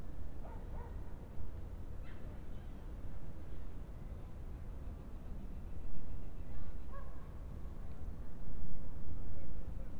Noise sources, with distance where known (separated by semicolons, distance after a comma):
background noise